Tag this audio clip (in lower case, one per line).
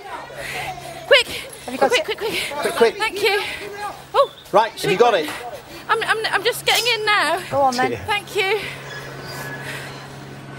speech